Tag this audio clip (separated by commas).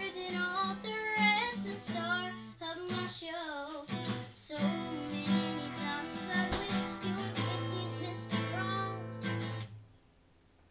Child singing, Music